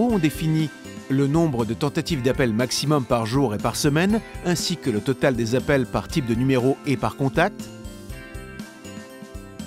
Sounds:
Music, Speech

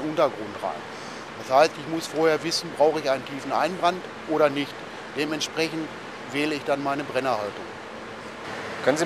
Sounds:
arc welding

